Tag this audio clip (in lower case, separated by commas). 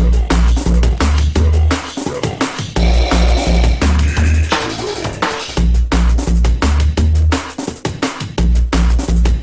music, electronic music, drum and bass